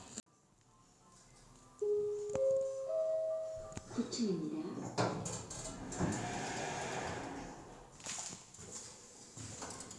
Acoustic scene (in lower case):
elevator